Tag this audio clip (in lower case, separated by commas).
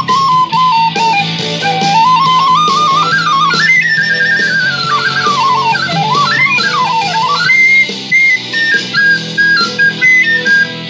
woodwind instrument, flute